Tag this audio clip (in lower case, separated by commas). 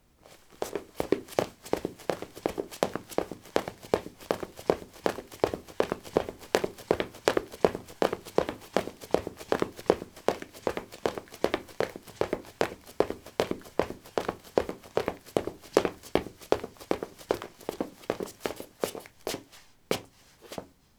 run